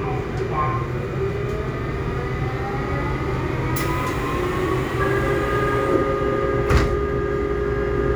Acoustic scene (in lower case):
subway train